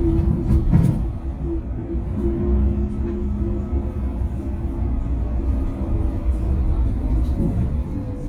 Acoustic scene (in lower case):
bus